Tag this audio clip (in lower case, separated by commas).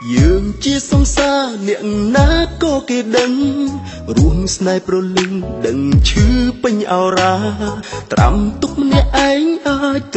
music